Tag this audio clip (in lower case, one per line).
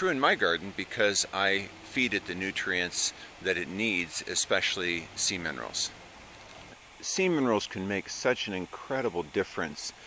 speech